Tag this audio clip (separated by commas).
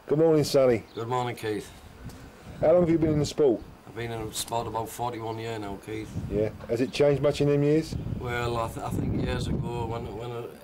Speech